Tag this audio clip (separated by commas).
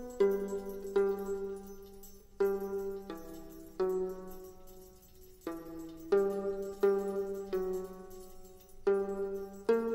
Music, Sad music